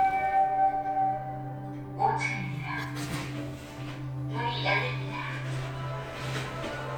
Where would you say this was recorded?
in an elevator